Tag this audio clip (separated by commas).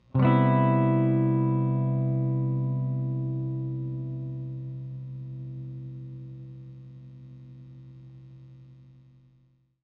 Music, Musical instrument, Guitar, Strum, Electric guitar, Plucked string instrument